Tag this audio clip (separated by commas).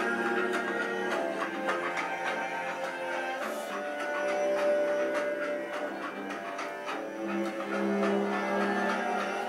playing cello